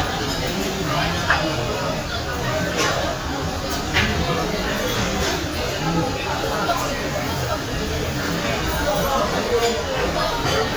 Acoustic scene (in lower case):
crowded indoor space